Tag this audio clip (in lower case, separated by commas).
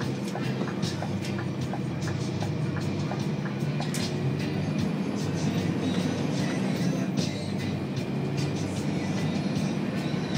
vehicle, music